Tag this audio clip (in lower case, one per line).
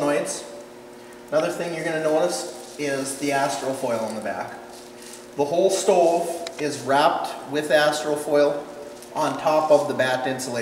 speech